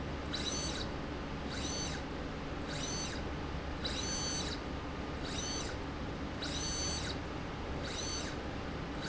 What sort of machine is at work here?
slide rail